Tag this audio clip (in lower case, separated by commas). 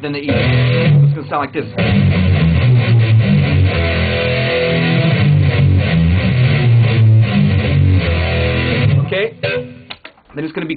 plucked string instrument, musical instrument, electric guitar, speech, guitar, music